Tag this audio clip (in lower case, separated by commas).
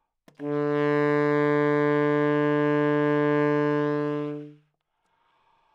music, musical instrument, wind instrument